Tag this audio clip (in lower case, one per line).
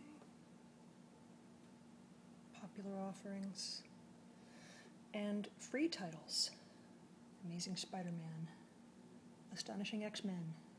speech